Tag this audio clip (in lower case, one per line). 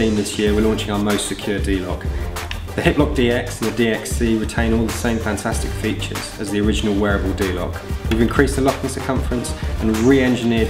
speech
music